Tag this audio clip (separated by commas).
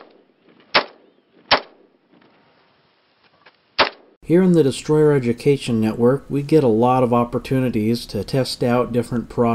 gunfire